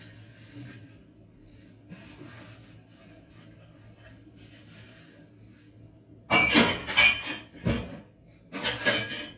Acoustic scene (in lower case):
kitchen